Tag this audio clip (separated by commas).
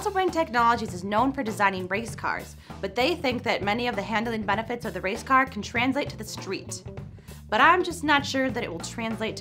Speech